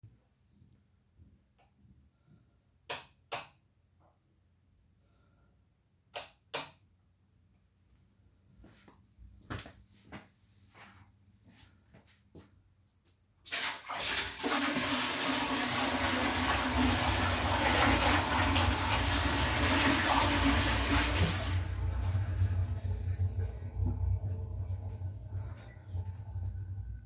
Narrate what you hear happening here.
I switched the lights multiple times and walked to the bathroom to turn on the water. After turning it off I walked away.